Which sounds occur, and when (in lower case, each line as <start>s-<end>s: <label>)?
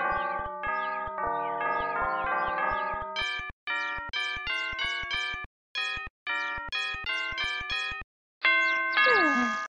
0.0s-3.5s: doorbell
0.1s-0.4s: tweet
0.7s-1.0s: tweet
1.4s-1.6s: tweet
1.8s-2.0s: tweet
2.2s-2.6s: tweet
2.8s-3.0s: tweet
3.2s-3.4s: tweet
3.6s-5.4s: doorbell
3.7s-3.9s: tweet
4.1s-4.4s: tweet
4.5s-4.7s: tweet
4.8s-5.0s: tweet
5.1s-5.4s: tweet
5.7s-6.1s: doorbell
5.8s-6.0s: tweet
6.3s-8.0s: doorbell
6.3s-6.5s: tweet
6.8s-6.9s: tweet
7.1s-7.3s: tweet
7.4s-7.6s: tweet
7.7s-7.9s: tweet
8.4s-9.6s: doorbell
8.6s-8.8s: tweet
8.9s-9.2s: tweet
9.0s-9.6s: human voice